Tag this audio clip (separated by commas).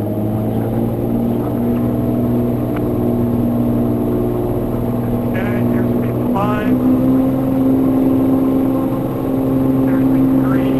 Speech